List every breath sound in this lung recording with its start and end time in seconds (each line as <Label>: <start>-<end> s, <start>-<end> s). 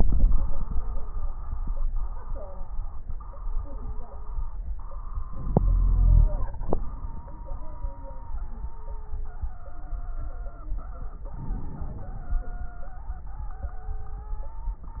Inhalation: 5.34-6.50 s, 11.35-12.40 s
Wheeze: 5.34-6.50 s
Crackles: 11.34-12.39 s